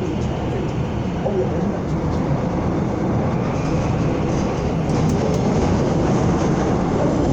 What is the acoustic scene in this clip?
subway train